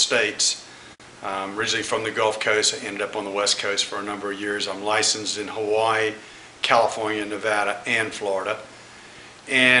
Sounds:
Speech, inside a small room

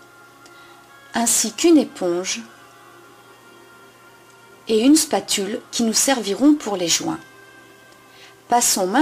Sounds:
Music, Speech

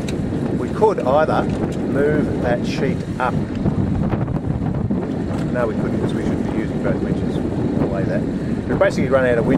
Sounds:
Vehicle, Speech, Wind noise (microphone)

